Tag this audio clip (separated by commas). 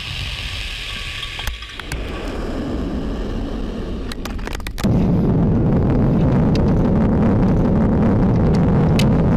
missile launch